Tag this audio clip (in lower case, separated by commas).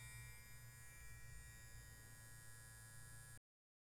home sounds